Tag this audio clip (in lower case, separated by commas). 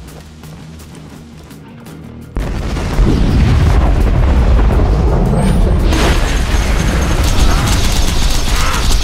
music